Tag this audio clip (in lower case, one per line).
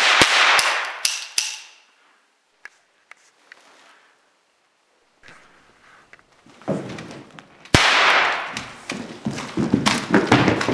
cap gun shooting